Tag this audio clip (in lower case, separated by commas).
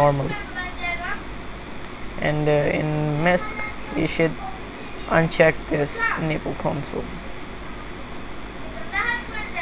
speech, inside a small room